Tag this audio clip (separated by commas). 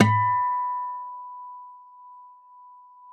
Plucked string instrument, Musical instrument, Guitar, Acoustic guitar, Music